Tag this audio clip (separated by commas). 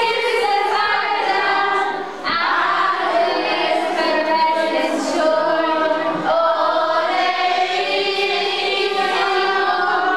Choir